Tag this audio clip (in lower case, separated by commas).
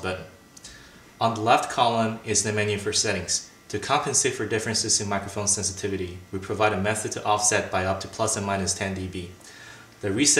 speech